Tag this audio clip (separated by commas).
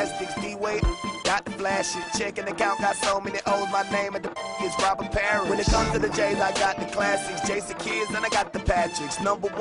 Music